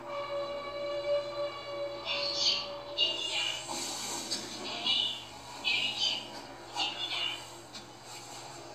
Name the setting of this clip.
elevator